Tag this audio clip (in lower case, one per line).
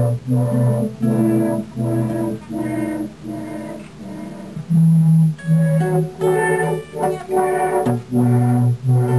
music